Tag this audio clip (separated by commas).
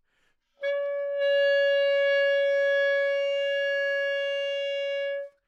Musical instrument, Wind instrument, Music